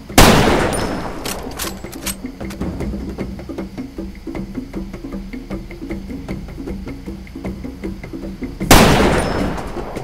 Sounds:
Music

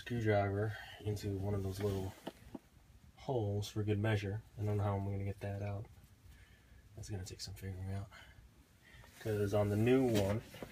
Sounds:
Speech

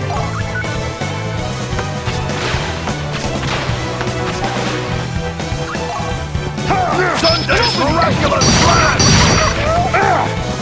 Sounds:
Speech, Music

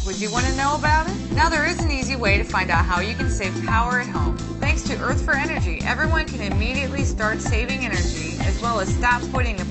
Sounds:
Speech, Music

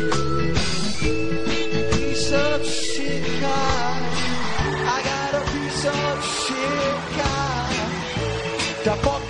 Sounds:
Music

